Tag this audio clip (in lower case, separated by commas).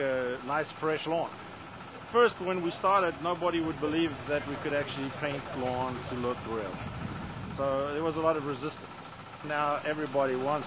speech